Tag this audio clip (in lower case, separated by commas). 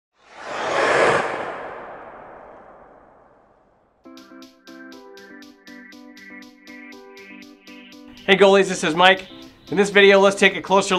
speech, music